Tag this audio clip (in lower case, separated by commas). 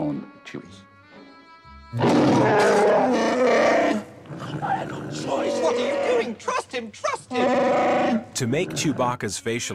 inside a small room, roar, music, speech